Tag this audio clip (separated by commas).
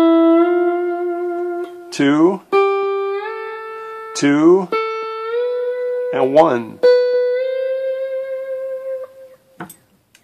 playing steel guitar